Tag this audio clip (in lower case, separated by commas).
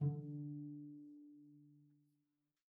bowed string instrument, music, musical instrument